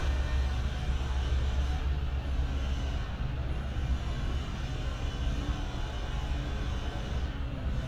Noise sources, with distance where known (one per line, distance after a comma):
small or medium rotating saw, far